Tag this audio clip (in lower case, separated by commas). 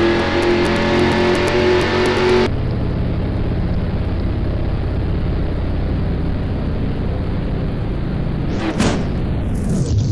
car